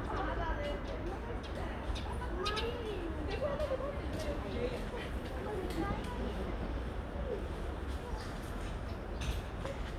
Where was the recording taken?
in a residential area